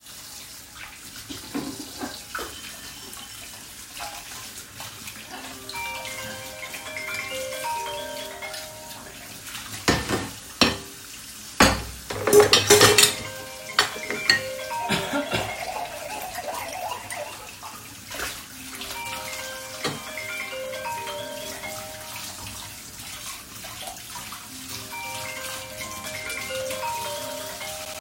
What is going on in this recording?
I wash dishes and cutlery at the sink while water is running. While I am doing this my phone starts ringing.